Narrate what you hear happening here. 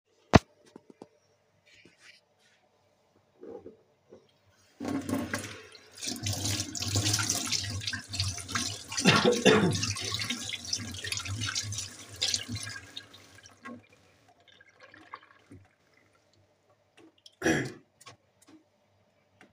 I turned on the bathroom tap and let the water run. While the water was flowing, I coughed a couple of times.